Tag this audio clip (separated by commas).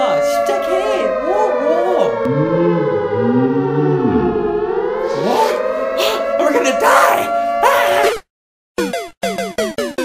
civil defense siren